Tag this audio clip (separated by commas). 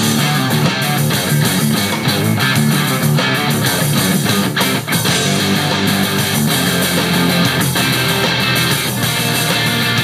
Plucked string instrument, Bass guitar, Musical instrument, Guitar, Strum, playing bass guitar, Music